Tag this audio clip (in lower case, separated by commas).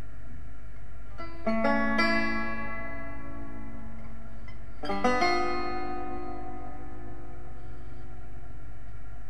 music, plucked string instrument, musical instrument, banjo